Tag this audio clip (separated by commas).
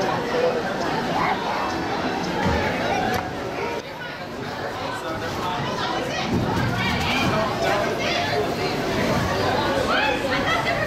Speech